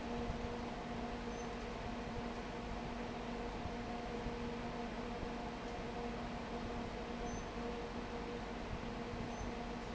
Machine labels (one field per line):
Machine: fan